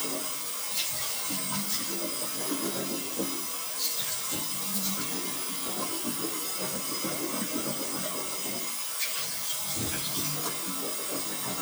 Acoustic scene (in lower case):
restroom